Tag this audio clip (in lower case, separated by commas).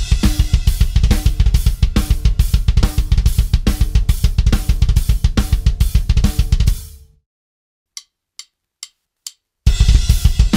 playing double bass